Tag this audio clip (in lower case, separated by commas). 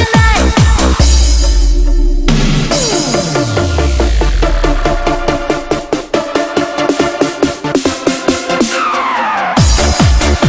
dubstep, electronic dance music, techno, electronica, music, electronic music